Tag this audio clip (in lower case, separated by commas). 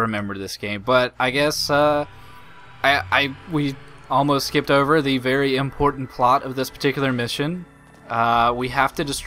speech, music